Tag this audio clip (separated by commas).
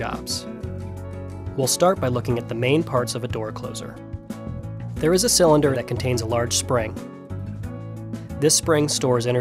Speech, Music